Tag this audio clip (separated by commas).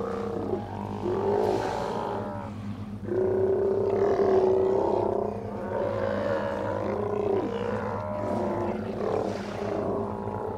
sea lion barking